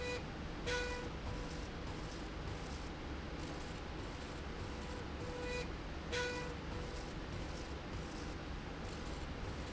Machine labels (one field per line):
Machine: slide rail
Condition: normal